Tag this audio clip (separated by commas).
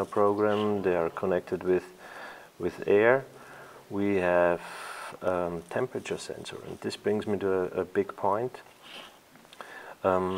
Speech